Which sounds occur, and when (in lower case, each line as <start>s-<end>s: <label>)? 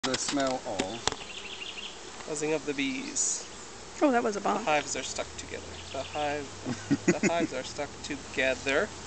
0.0s-9.0s: background noise
0.0s-9.0s: bee or wasp
0.0s-9.0s: conversation
5.7s-6.5s: bird song
6.6s-7.6s: laughter
8.1s-8.8s: male speech